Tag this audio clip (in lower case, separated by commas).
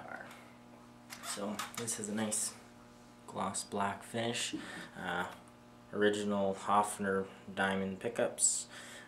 speech